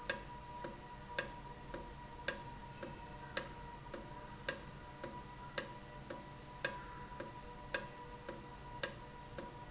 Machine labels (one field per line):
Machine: valve